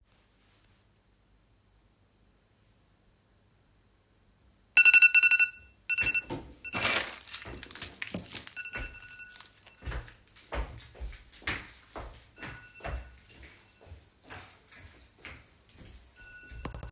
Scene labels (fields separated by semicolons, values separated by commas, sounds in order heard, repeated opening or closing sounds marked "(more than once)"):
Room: bedroom; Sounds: phone ringing, footsteps, keys